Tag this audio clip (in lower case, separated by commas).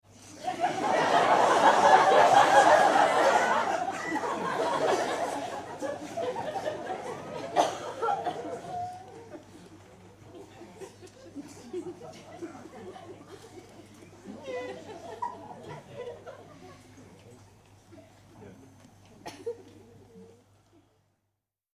laughter, human voice